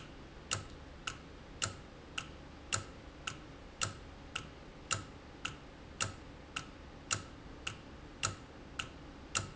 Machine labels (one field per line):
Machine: valve